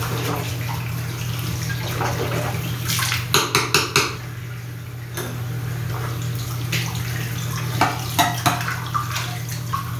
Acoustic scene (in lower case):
restroom